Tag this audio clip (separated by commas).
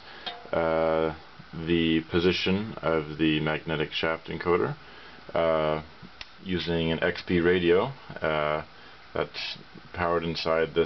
Speech